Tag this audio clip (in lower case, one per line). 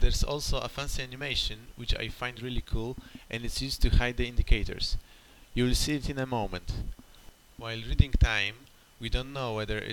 speech